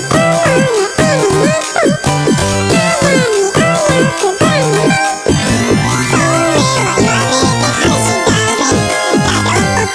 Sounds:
music

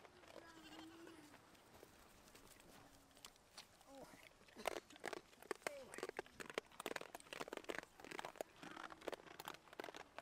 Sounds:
goat bleating

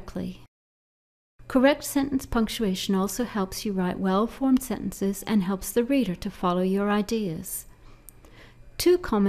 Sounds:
speech

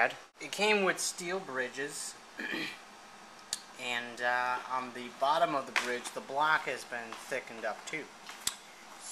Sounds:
speech

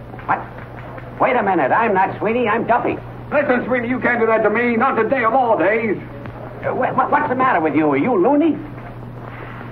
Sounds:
speech

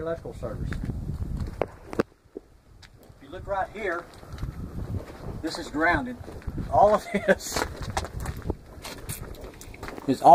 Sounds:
wind noise (microphone)
wind

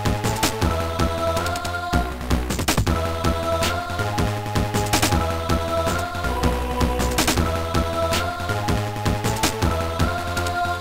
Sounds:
music

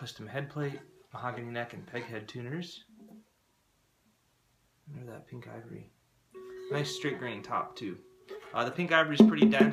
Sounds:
speech
music

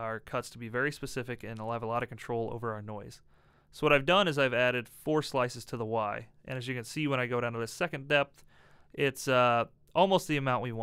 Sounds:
speech

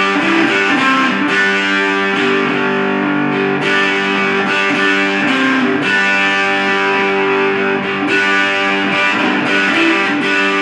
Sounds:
strum
acoustic guitar
guitar
musical instrument
plucked string instrument
music

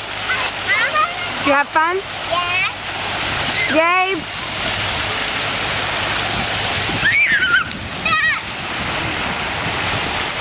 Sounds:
speech

